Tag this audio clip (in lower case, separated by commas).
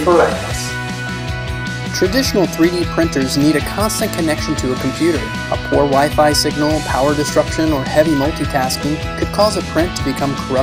speech, music